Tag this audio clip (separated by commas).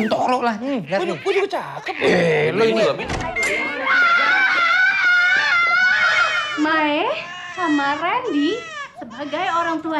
people screaming, Screaming, Speech